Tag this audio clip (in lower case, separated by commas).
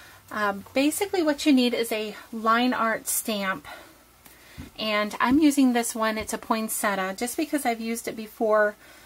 speech